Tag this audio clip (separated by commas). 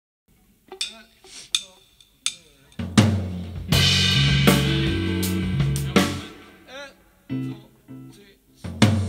Rimshot, Percussion, Snare drum, Drum, Drum kit, Bass drum